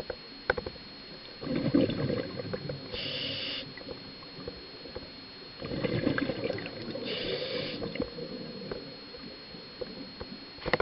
Gurgling and hissing underwater